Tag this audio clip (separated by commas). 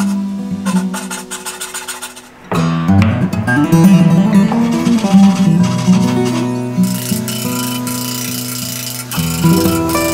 Music